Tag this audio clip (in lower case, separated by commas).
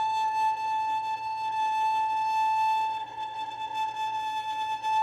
bowed string instrument, musical instrument, music